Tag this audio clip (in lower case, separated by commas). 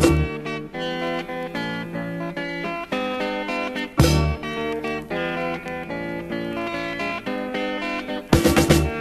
music of africa, music